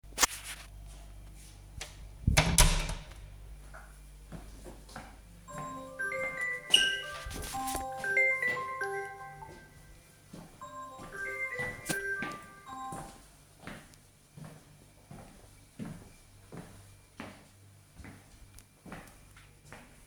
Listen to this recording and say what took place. I closed the door, then the phone rang. I stopped it and after that went out.